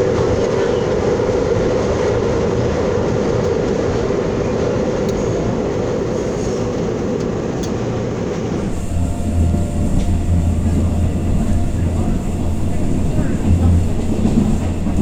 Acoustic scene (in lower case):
subway train